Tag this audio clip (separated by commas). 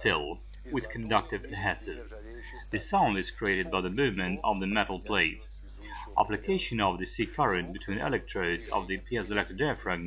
Speech